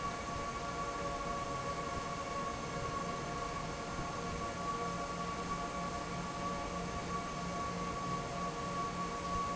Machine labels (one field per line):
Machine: fan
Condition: normal